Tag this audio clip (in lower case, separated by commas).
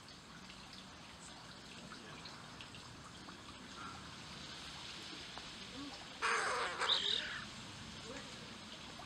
bird, crow